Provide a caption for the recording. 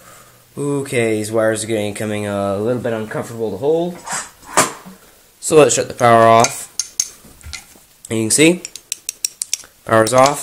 Male talking with clanking noises in the background